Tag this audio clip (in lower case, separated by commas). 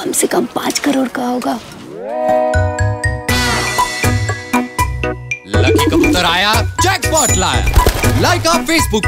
music, speech